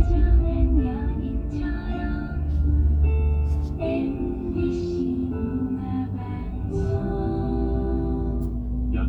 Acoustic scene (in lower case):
car